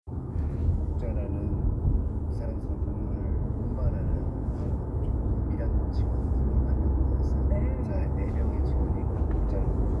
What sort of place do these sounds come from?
car